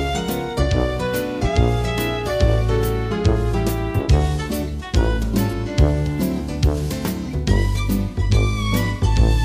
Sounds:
Music

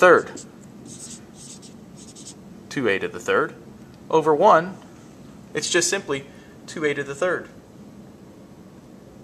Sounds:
Writing, Speech

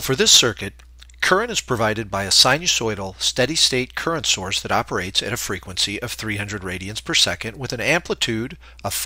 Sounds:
Speech

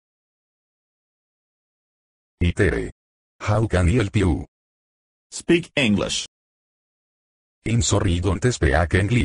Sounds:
Speech

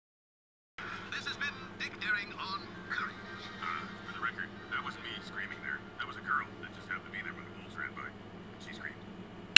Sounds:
Television, Music, Speech

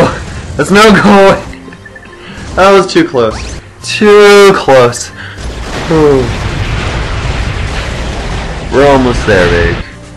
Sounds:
Speech

